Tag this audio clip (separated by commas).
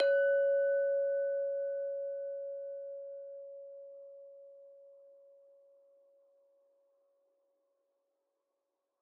Chink, Glass